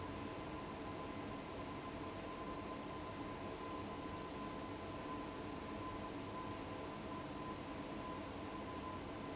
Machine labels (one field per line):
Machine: fan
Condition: abnormal